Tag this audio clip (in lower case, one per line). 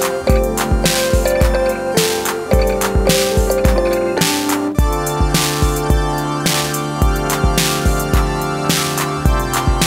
playing synthesizer